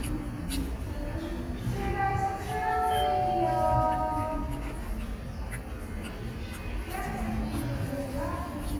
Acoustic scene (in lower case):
restaurant